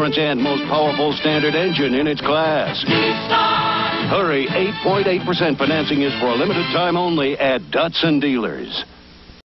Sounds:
music, speech

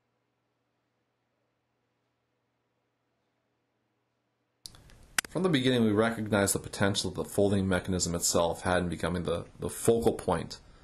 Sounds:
speech

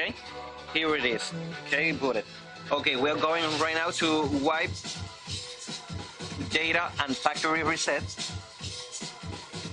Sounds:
scratching (performance technique)

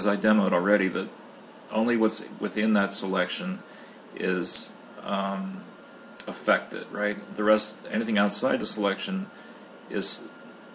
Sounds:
speech

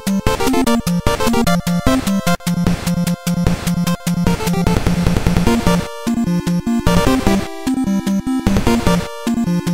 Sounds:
music

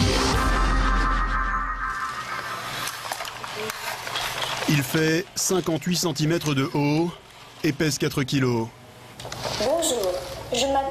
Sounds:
speech

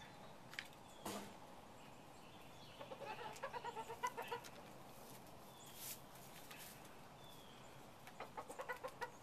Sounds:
animal, crowing, chicken

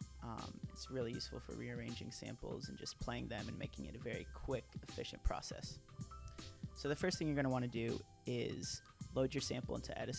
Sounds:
music, sampler, speech

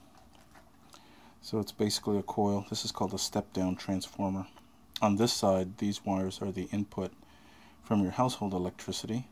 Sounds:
speech

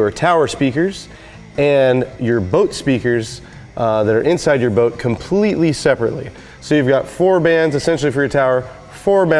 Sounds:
speech

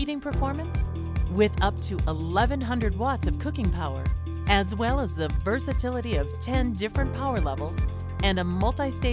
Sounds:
speech, music

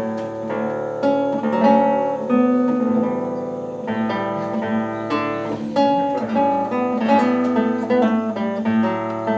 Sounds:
acoustic guitar, musical instrument, plucked string instrument, music, guitar, strum

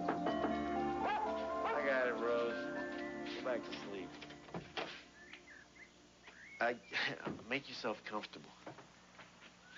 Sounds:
speech, music, bird song

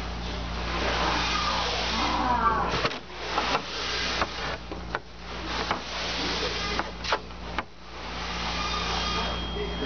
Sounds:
printer printing, speech, printer

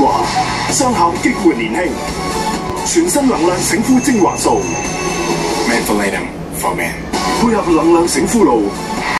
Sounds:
speech, music

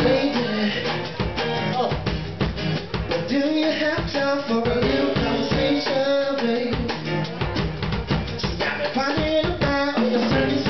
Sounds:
music, male singing

